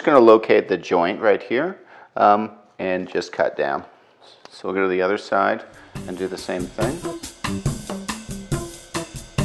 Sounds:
Speech, Music

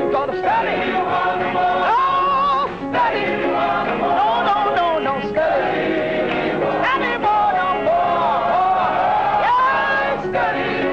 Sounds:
Music

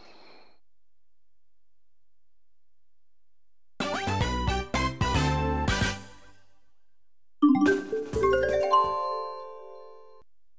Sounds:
Music, Glockenspiel

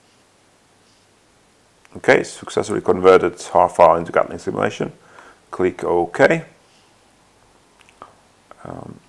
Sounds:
inside a small room, Speech

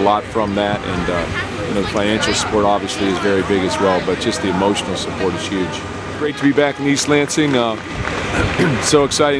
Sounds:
Speech, outside, urban or man-made

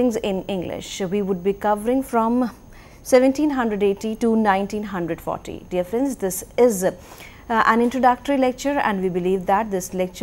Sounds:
Speech

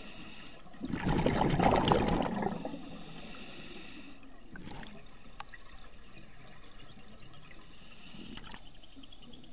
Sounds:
scuba diving

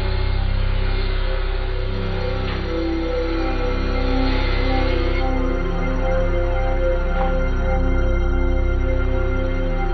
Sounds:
Music

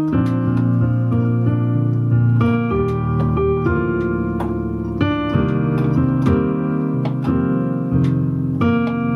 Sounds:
Rhythm and blues, Music

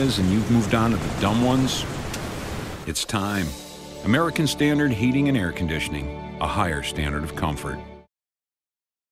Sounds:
Music, Speech

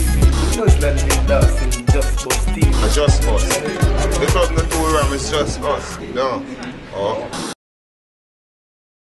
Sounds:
Speech, Music, Television

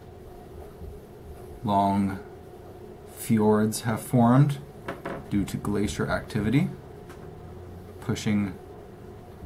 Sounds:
Speech

